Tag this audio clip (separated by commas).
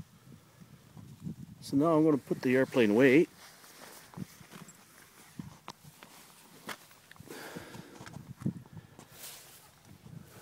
Speech